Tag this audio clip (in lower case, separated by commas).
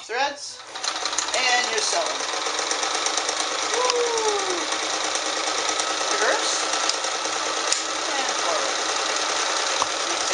using sewing machines, speech, sewing machine